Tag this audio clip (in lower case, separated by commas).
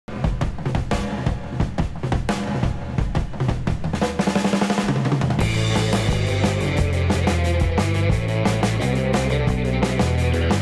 bass drum, drum kit, drum